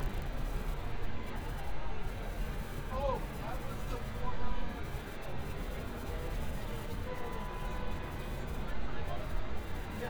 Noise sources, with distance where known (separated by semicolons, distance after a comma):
person or small group talking, near